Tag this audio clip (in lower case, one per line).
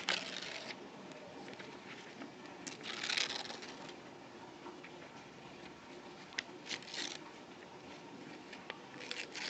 ripping paper